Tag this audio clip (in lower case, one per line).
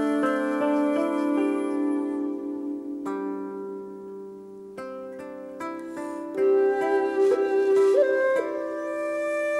harp
music